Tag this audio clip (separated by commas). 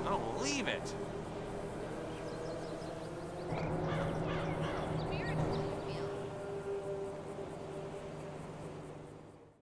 Speech